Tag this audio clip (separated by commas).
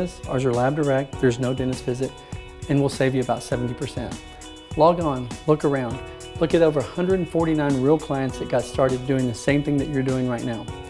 Music, Speech